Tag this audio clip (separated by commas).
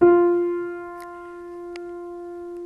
Piano, Music, Musical instrument, Keyboard (musical)